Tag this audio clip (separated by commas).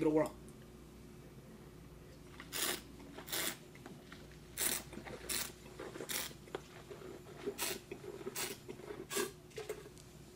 Speech, inside a small room